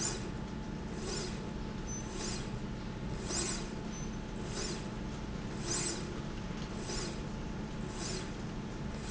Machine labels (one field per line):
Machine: slide rail